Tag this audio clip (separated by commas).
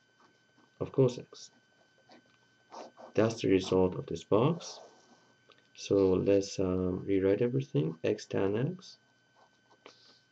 Speech, inside a small room